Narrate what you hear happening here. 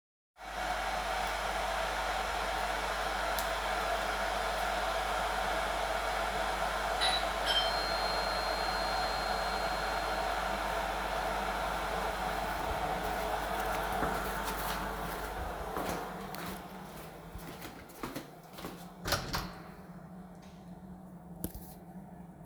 coffee machine working,bell ringing,walking from kitchen to living room and open the door